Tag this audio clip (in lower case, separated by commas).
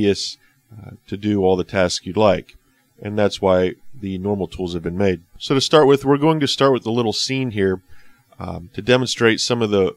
speech